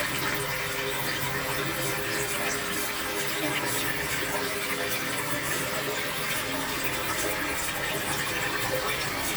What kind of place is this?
restroom